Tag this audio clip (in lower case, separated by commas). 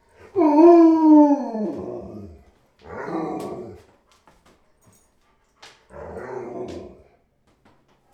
animal, domestic animals, dog